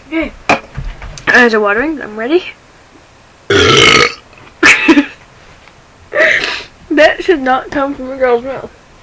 A female is talking and burps